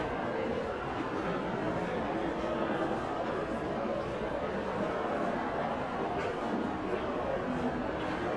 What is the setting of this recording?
crowded indoor space